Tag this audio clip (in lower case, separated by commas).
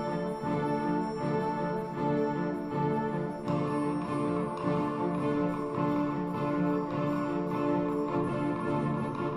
music, musical instrument, violin